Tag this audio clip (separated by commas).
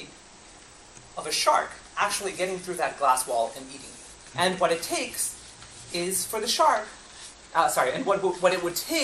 Speech